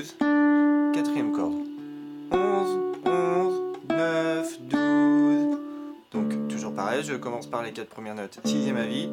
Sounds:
acoustic guitar, musical instrument, speech, plucked string instrument, music, guitar

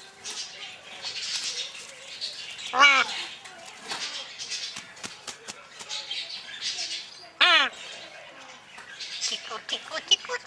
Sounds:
parrot talking

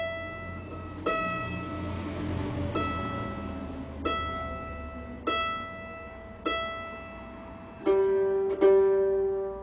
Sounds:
mandolin, ukulele, music, guitar, plucked string instrument, musical instrument

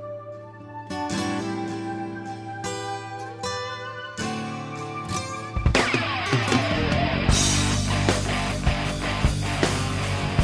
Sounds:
exciting music, music

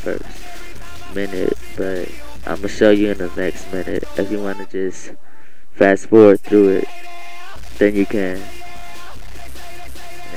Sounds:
music, speech

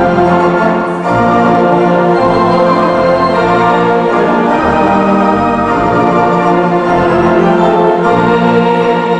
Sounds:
music

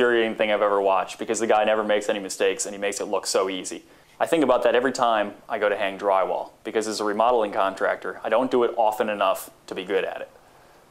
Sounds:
speech

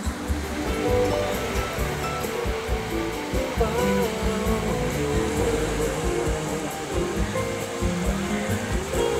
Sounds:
music

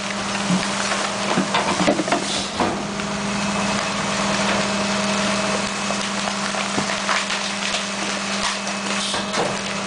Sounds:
crushing

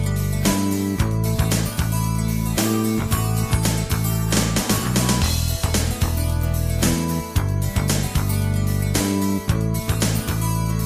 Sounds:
theme music, music

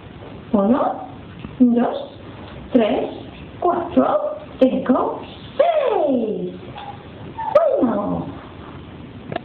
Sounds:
speech

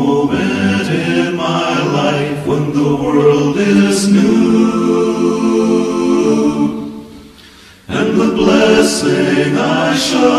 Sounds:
music, chant

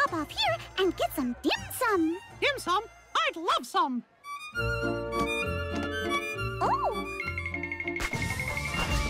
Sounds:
music, speech

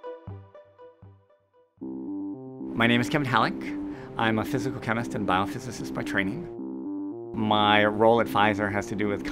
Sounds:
music, speech

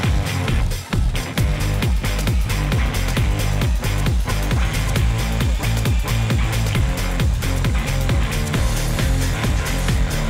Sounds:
music

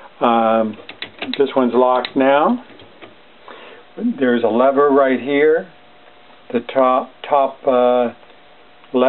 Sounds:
speech

